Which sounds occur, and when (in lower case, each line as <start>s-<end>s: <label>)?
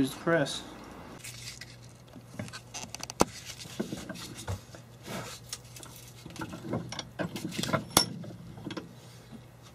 0.0s-0.6s: man speaking
0.0s-9.7s: mechanisms
1.1s-2.1s: generic impact sounds
2.3s-4.8s: generic impact sounds
3.2s-3.2s: tick
5.0s-7.0s: generic impact sounds
7.2s-8.4s: generic impact sounds
7.9s-8.0s: tick
8.6s-8.8s: generic impact sounds
9.0s-9.4s: breathing